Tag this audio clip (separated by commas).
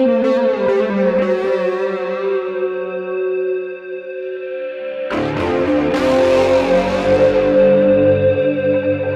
Electric guitar, Acoustic guitar, Musical instrument, Strum, Guitar, Plucked string instrument, Music